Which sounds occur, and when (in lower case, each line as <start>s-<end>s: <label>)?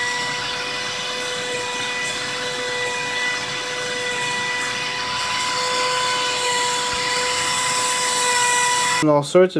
0.0s-9.0s: mechanisms
9.0s-9.5s: male speech